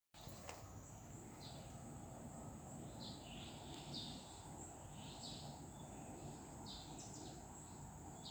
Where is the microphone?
in a park